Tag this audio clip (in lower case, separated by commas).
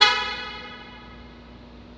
alarm, motor vehicle (road), car, vehicle horn, vehicle